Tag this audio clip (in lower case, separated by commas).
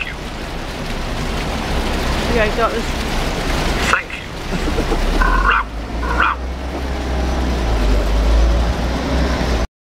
bow-wow, speech, dog, animal